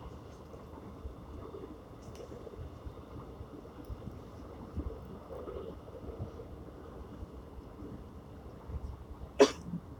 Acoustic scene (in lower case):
subway train